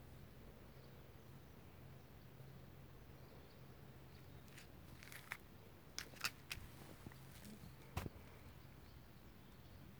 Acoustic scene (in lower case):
park